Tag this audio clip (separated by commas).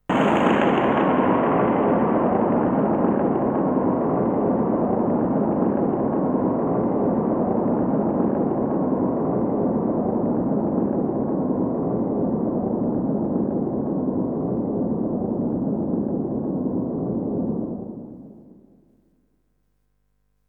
Thunder, Thunderstorm